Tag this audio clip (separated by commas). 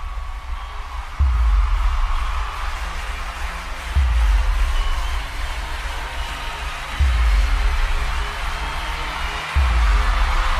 Rhythm and blues, Music